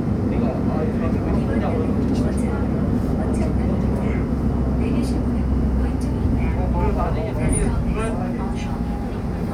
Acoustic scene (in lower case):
subway train